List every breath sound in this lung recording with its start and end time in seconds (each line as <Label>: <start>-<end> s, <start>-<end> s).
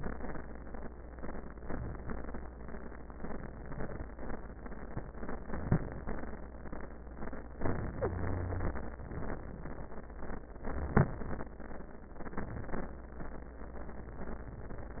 Inhalation: 10.76-11.51 s
Wheeze: 7.96-8.71 s